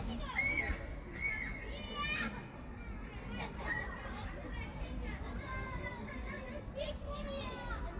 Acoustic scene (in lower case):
park